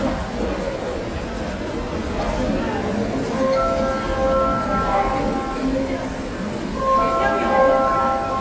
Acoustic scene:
subway station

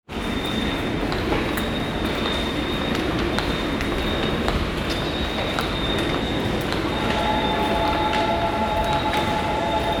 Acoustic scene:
subway station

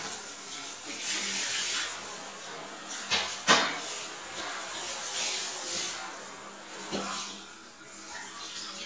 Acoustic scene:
restroom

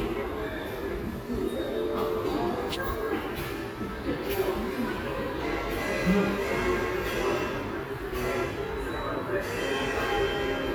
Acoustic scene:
subway station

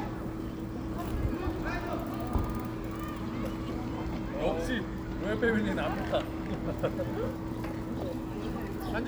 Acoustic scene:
park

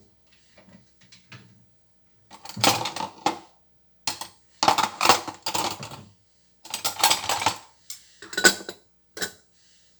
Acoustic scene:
kitchen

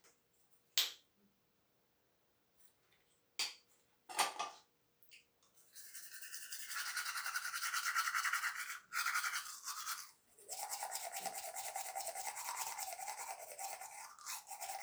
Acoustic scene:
restroom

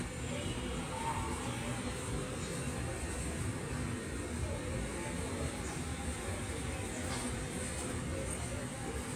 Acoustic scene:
subway station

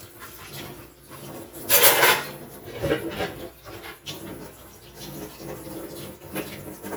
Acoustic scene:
kitchen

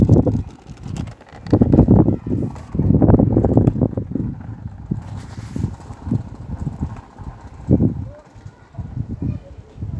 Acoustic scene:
park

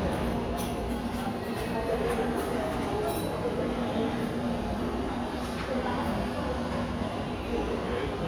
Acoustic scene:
cafe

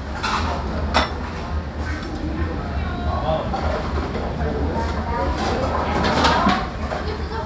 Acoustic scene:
restaurant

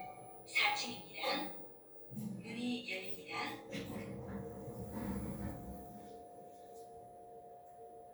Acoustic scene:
elevator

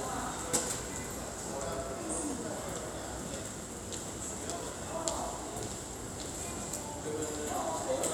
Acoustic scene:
subway station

